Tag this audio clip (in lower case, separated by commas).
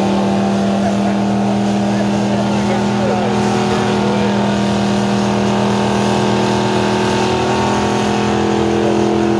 truck, car, vehicle